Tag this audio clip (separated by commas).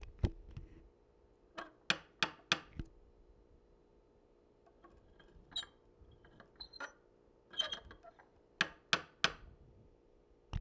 Knock, Domestic sounds, Door